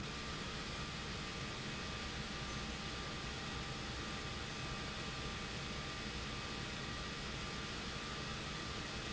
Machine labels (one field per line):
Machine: pump